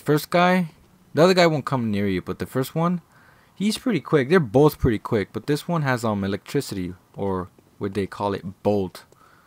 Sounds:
Speech

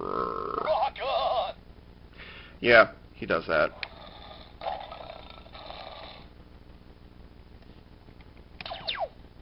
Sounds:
inside a small room, Speech

